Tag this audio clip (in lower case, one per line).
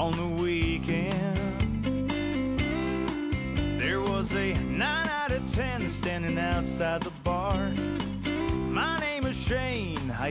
music